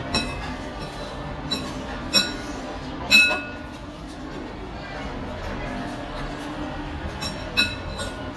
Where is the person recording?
in a restaurant